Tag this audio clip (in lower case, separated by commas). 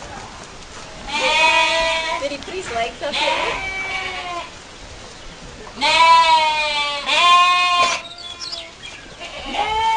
livestock